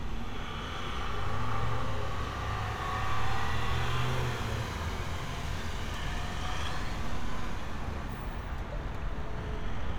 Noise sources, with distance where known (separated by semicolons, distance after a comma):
engine of unclear size